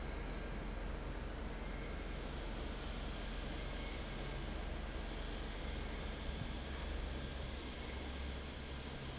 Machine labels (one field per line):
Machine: fan